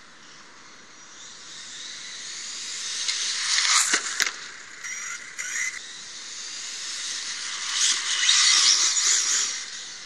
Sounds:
Car

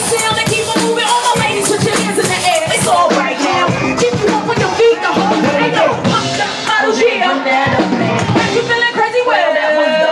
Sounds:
Music, Musical instrument

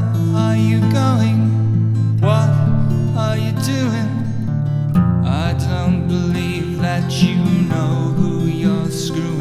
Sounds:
Music

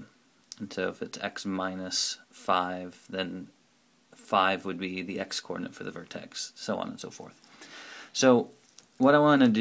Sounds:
Speech

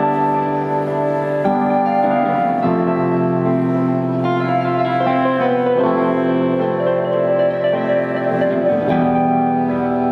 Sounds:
Music, Tender music

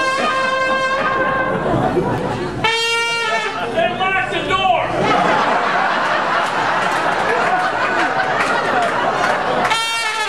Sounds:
Music, Speech

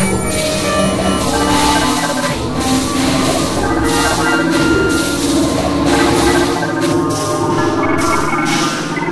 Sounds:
White noise, Music

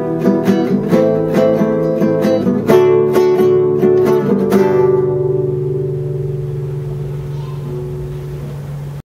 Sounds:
Music, Speech

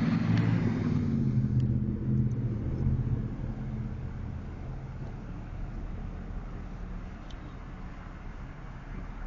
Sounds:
Car, Vehicle

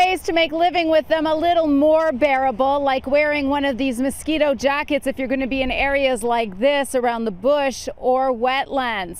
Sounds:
Speech

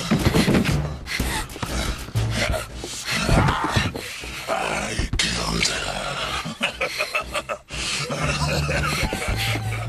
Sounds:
Speech

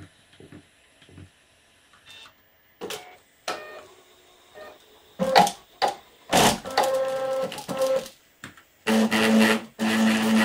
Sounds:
inside a small room

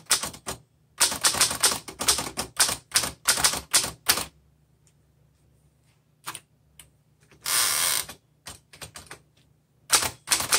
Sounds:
typing on typewriter

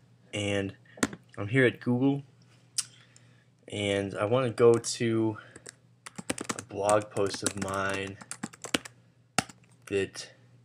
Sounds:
Speech

